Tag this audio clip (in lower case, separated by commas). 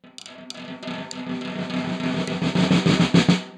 music, drum, musical instrument, snare drum, percussion